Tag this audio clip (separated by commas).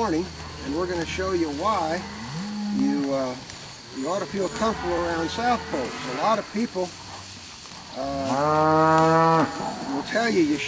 Moo, bovinae, livestock